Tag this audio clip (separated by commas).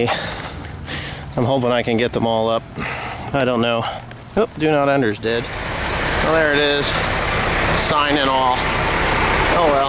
Speech, Truck, outside, urban or man-made